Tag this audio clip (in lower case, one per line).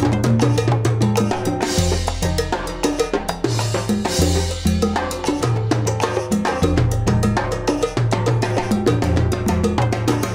playing timbales